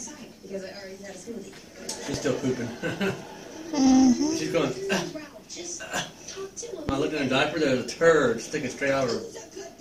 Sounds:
speech, laughter

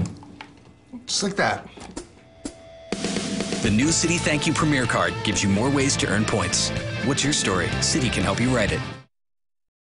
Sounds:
music, rock and roll, speech, roll

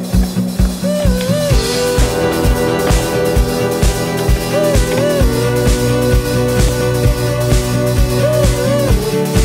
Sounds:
skateboard, music

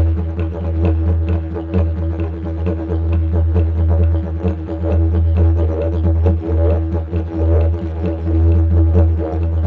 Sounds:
didgeridoo, music

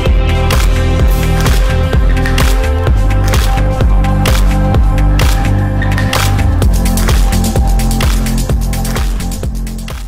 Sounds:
music

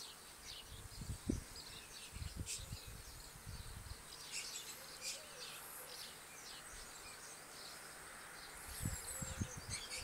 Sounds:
bird song, bird, tweet

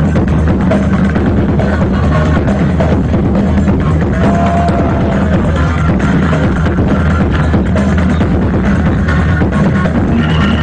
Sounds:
techno, music

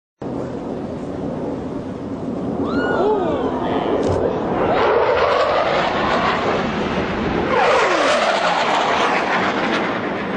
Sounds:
aircraft, vehicle

